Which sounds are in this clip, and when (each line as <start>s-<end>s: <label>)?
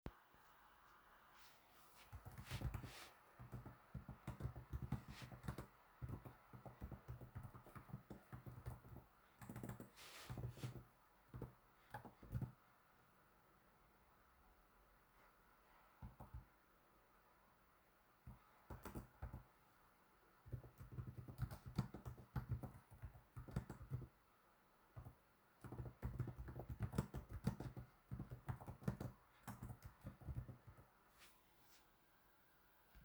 1.8s-12.7s: keyboard typing
15.6s-16.8s: keyboard typing
18.1s-19.6s: keyboard typing
20.5s-24.4s: keyboard typing
24.7s-31.5s: keyboard typing